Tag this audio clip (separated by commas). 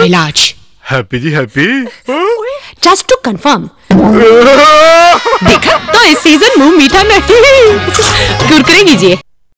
Music, Speech